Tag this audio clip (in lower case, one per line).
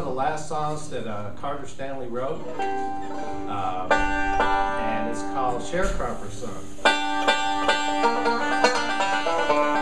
music
banjo
speech